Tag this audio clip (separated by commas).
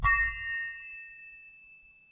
Bell